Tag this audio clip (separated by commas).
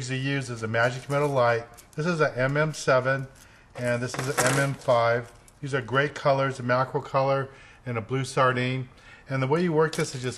Speech